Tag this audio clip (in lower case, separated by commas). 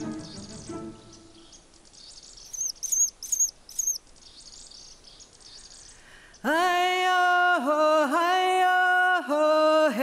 music, bird, environmental noise